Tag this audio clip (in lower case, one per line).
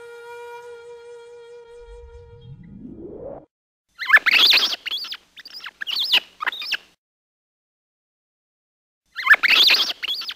mouse squeaking